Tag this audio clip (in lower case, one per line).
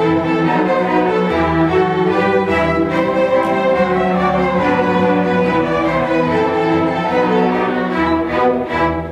orchestra
music